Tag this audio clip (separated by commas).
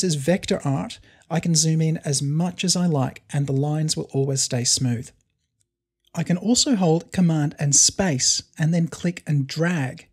Speech